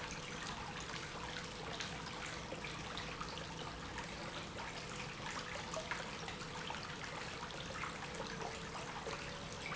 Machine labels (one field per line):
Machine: pump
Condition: normal